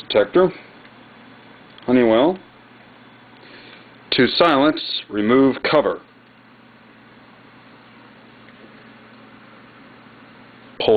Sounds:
Speech

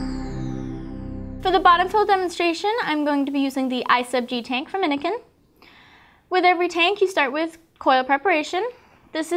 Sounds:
Speech, Music

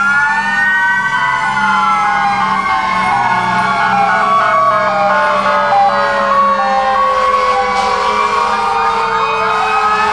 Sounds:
Vehicle

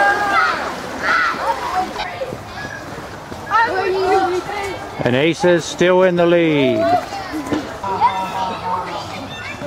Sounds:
Speech

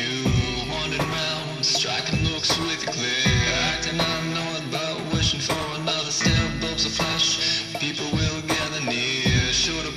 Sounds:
Pop music, Music

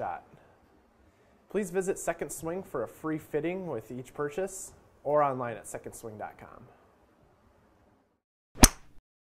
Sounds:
Speech

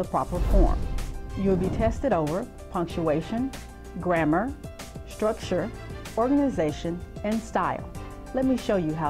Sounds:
Speech, Music

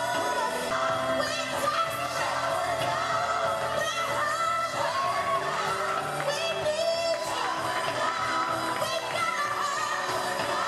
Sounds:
Music

